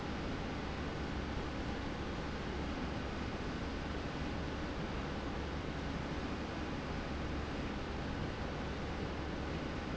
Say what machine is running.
slide rail